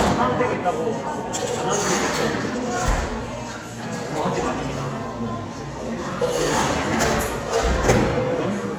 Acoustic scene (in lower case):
cafe